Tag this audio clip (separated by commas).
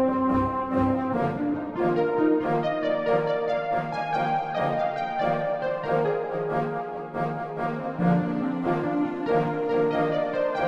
Music